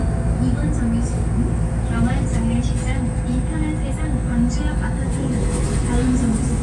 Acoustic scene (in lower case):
bus